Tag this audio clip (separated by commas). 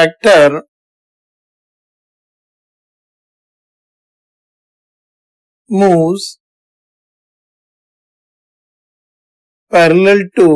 Speech